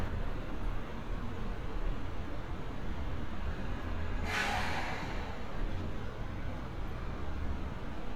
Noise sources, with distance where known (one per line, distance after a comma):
engine of unclear size, near